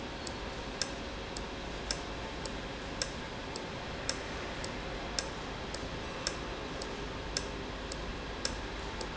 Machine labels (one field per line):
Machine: valve